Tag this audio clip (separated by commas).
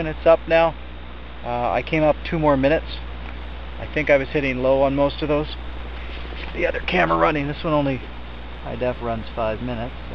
Speech